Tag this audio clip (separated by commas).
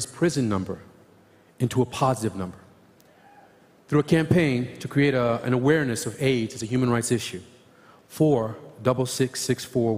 Speech